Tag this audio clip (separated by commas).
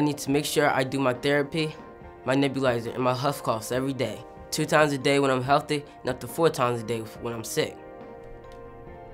Music, Speech